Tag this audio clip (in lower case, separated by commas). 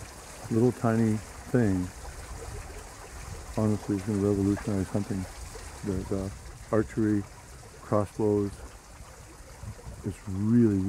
speech